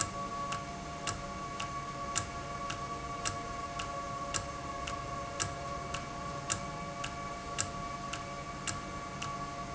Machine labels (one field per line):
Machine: valve